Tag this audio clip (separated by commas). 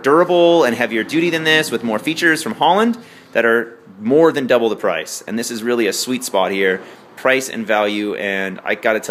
Speech